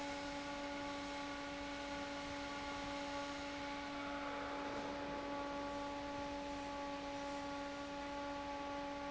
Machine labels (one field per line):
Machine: fan